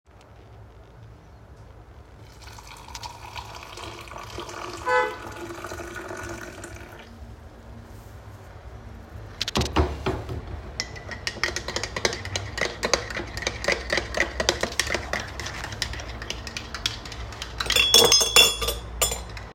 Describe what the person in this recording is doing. I poured the black coffee in the class, then I started to stir the coffee with the spoon but in between I heard the car horn sound through my kitchen window.